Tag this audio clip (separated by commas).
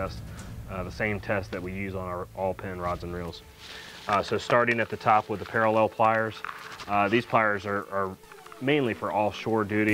Music, Speech